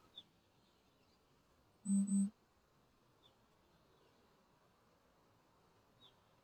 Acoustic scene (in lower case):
park